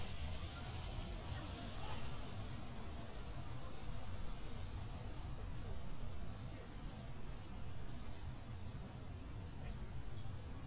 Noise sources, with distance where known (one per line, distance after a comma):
person or small group talking, far